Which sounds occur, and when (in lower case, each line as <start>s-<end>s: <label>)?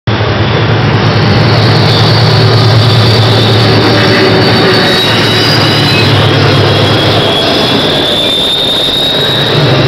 0.0s-9.8s: train
4.7s-6.1s: train wheels squealing
6.6s-9.7s: train wheels squealing